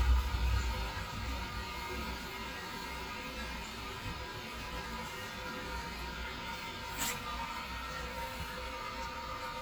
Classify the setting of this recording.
restroom